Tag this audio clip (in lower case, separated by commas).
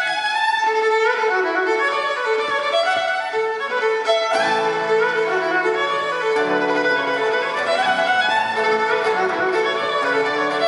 fiddle, music, musical instrument